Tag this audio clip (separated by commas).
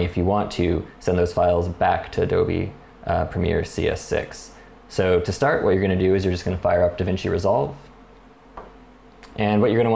Speech